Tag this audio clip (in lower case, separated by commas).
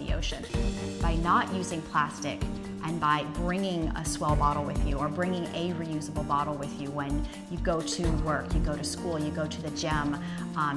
speech, music